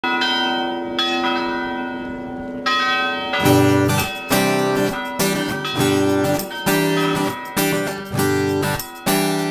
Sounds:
church bell
bell
music

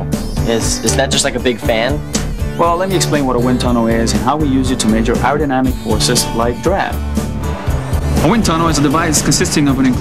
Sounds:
music
speech

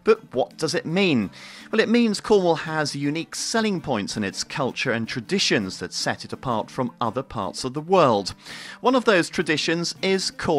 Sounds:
speech

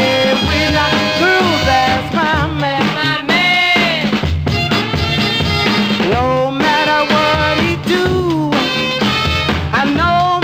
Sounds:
music
rhythm and blues
reggae

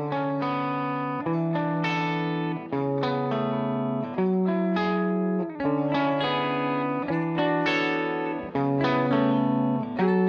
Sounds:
music

